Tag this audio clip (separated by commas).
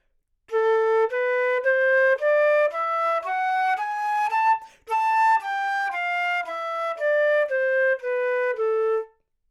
Musical instrument, Wind instrument, Music